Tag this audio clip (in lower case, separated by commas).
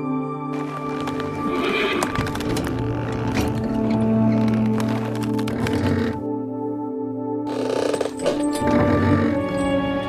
horse, music, animal